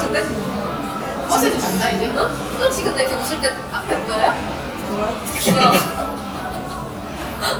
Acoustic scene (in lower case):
cafe